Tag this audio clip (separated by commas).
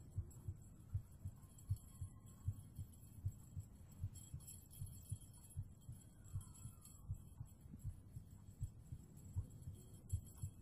heartbeat